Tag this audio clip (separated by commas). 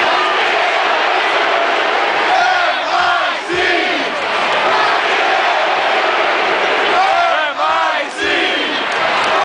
Speech